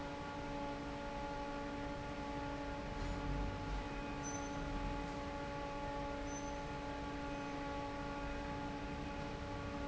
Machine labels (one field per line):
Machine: fan